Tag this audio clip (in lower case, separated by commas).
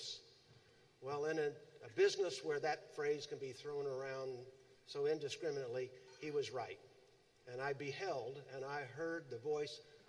speech